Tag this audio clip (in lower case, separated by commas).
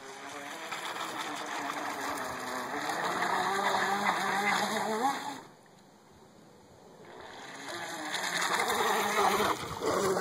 motorboat